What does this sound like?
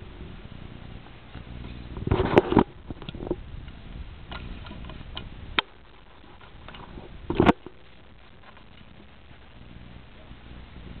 Faint clicking and rumbling machine